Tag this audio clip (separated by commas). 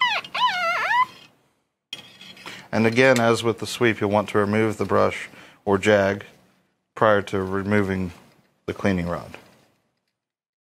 inside a large room or hall, Speech